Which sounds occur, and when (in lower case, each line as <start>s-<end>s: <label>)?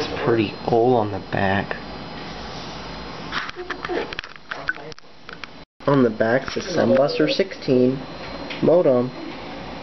0.0s-5.6s: mechanisms
0.2s-0.5s: male speech
0.7s-1.7s: male speech
3.3s-4.4s: generic impact sounds
3.6s-4.1s: male speech
4.5s-4.8s: generic impact sounds
4.5s-4.9s: male speech
4.9s-5.0s: generic impact sounds
5.2s-5.4s: generic impact sounds
5.8s-9.8s: mechanisms
5.8s-8.0s: male speech
8.4s-9.2s: male speech